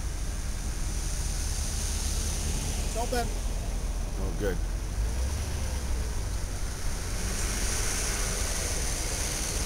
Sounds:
speech

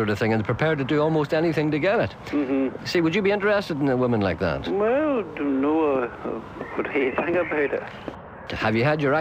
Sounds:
speech

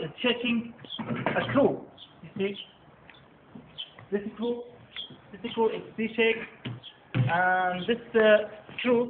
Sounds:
speech

